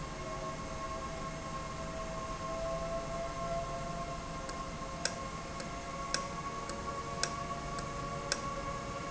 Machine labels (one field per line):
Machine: valve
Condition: normal